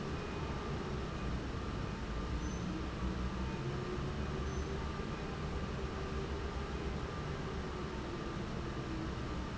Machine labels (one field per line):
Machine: fan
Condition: normal